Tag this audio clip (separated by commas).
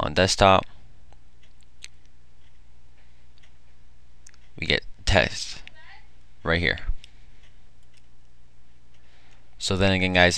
Speech